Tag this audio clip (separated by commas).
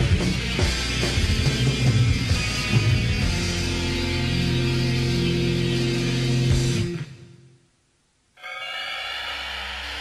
Music